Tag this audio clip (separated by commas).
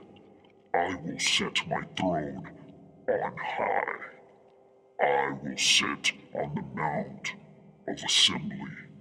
man speaking, Speech synthesizer, Speech